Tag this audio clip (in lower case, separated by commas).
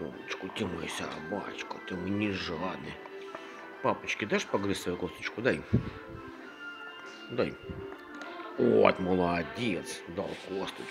music, speech